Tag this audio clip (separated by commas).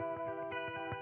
Music, Guitar, Electric guitar, Plucked string instrument, Musical instrument